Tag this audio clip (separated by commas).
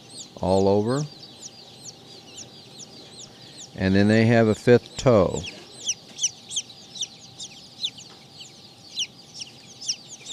Speech